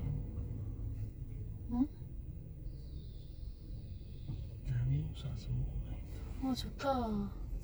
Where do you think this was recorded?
in a car